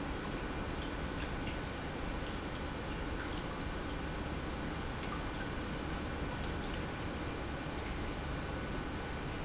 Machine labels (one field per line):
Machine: pump